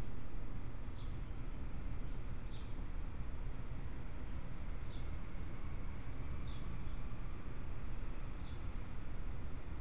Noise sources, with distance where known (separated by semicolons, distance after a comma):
background noise